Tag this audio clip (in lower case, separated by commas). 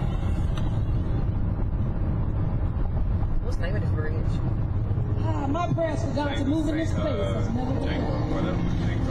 car, outside, urban or man-made, speech